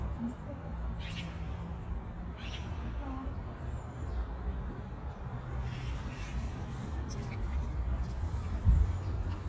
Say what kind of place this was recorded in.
park